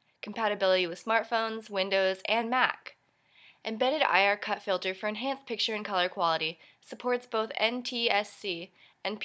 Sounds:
speech

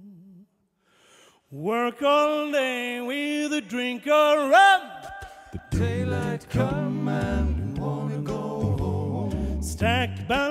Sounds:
music

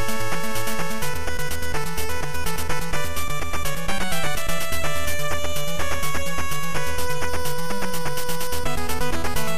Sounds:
music

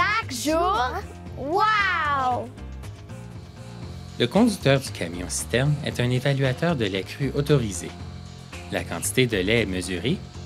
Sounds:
music, speech

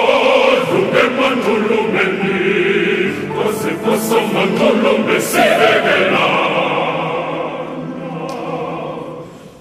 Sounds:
singing choir

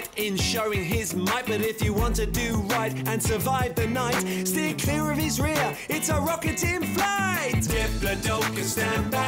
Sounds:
rapping

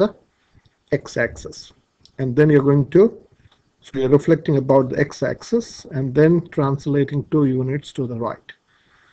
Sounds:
speech

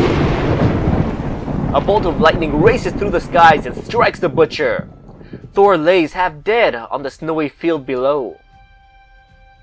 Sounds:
speech, music

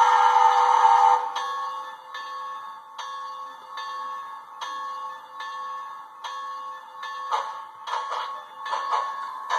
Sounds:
train, sound effect, inside a large room or hall

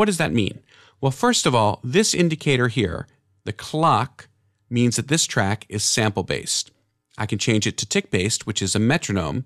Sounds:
speech

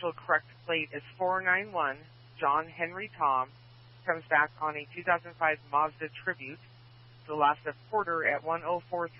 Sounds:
police radio chatter

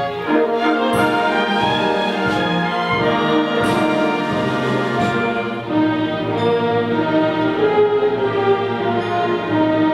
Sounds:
music

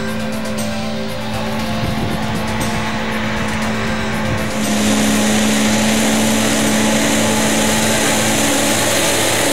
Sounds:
music, flap, engine

